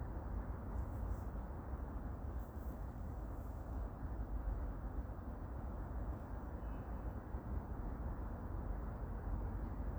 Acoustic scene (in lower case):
park